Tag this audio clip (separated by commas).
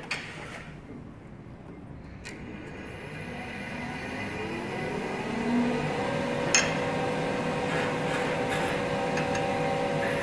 lathe spinning